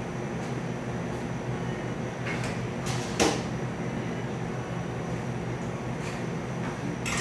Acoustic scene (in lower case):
cafe